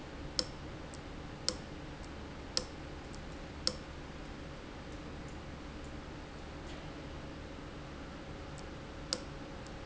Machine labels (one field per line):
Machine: valve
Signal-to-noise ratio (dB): 0 dB